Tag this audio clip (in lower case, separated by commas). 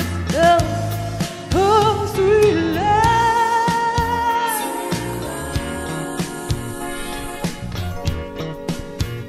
music, singing